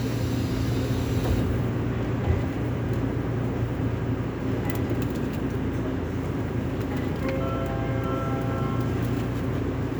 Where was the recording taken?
on a subway train